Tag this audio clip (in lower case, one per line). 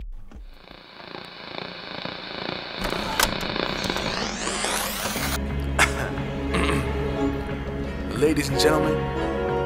music